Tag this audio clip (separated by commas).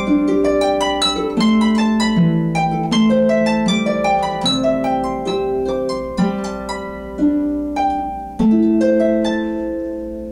Music, playing harp, Harp, Musical instrument, Plucked string instrument